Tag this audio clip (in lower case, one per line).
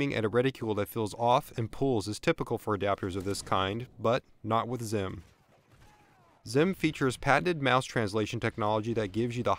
speech